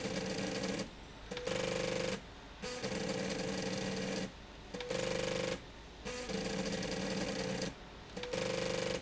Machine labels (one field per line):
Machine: slide rail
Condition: abnormal